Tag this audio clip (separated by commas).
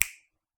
Finger snapping, Hands